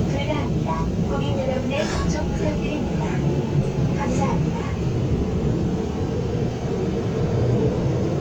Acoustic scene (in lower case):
subway train